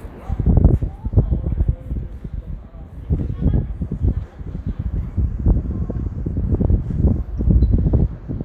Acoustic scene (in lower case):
residential area